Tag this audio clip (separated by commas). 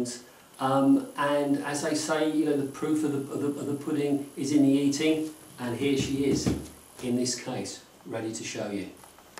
Speech